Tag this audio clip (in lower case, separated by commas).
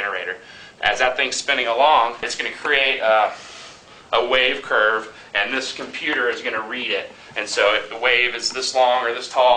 speech